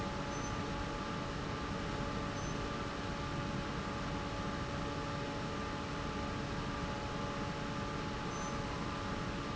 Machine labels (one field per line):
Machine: fan